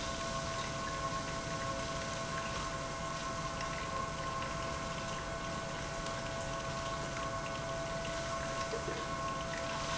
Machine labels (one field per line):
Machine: pump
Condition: abnormal